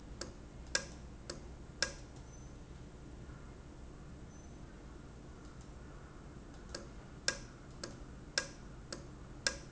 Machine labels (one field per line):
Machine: valve